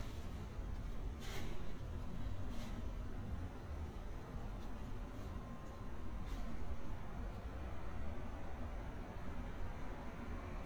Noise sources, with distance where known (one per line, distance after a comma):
background noise